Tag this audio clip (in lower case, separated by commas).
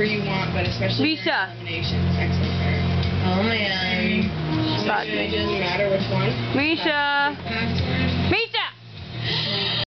music, speech